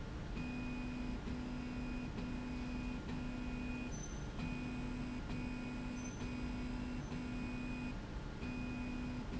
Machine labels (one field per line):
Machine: slide rail